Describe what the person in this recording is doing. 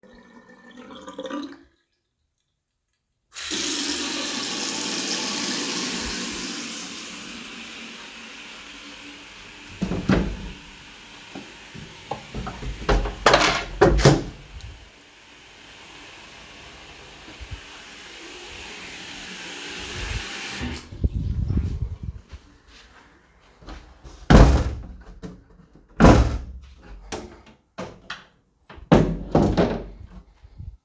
At the beginning water is draining. I opened the water, opened the window, then closed the water and closed the window.